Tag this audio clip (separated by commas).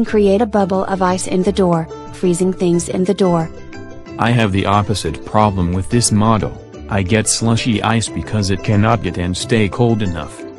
Speech synthesizer